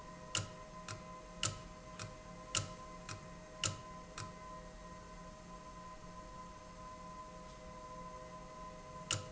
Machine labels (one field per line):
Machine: valve